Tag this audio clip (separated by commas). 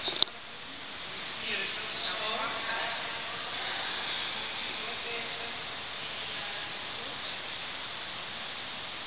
Speech